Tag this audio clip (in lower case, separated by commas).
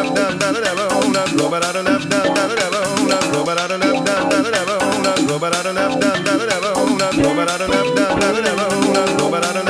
funny music, music